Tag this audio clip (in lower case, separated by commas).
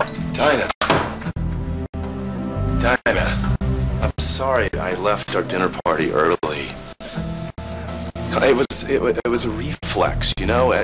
music, speech, inside a small room